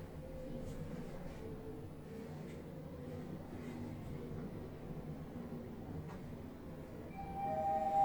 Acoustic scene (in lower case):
elevator